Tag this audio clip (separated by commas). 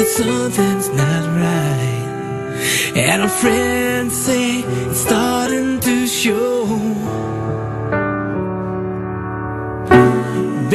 Music